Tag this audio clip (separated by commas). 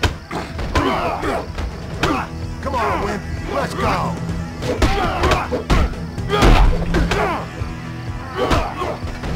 Speech, Music